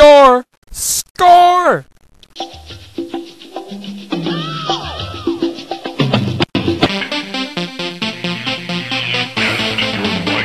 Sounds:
speech, music, techno

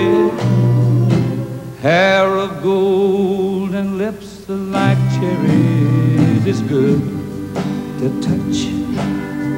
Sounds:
music

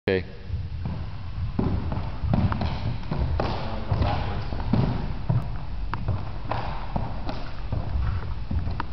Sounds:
speech, footsteps

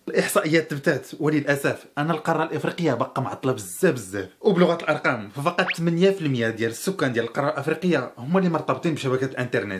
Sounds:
speech

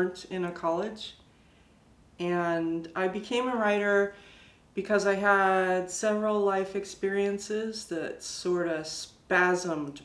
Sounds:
speech

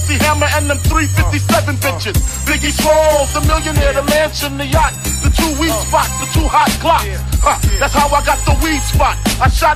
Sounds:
hip hop music, music, rapping, singing

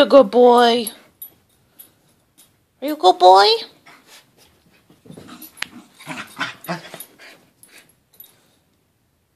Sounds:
speech, animal, dog, pets, canids

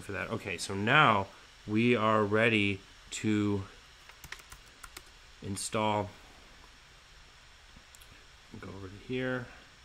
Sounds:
computer keyboard, speech

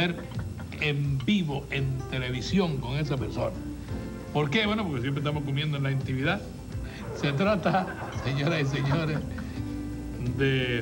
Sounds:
music, speech, man speaking

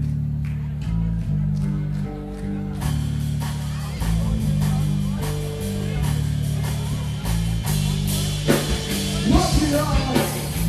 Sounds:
singing, music, punk rock

